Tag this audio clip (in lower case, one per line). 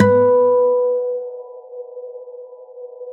acoustic guitar
music
plucked string instrument
musical instrument
guitar